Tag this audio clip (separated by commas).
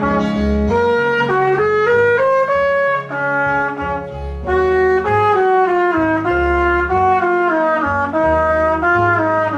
playing trumpet